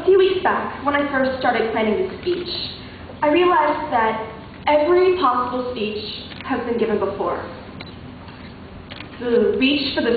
A woman student giving a lecture or speech in front of her class